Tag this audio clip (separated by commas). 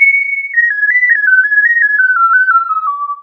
Music, Keyboard (musical), Musical instrument